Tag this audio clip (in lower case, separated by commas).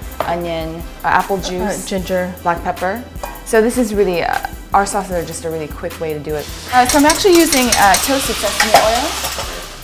sizzle, frying (food)